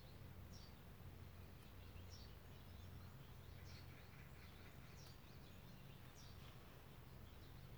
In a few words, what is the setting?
park